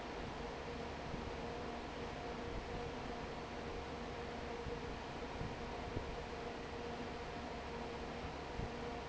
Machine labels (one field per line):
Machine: fan